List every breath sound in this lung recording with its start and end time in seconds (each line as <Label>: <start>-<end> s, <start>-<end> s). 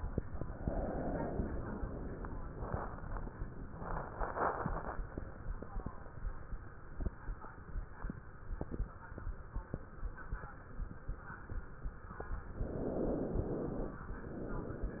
Inhalation: 12.60-14.00 s
Exhalation: 0.64-2.37 s, 14.22-15.00 s